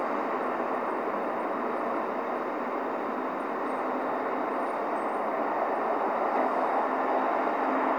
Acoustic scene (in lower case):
street